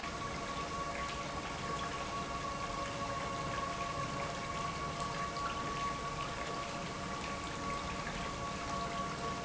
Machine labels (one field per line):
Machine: pump